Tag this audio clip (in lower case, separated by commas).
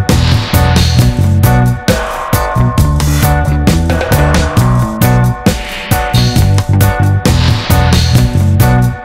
music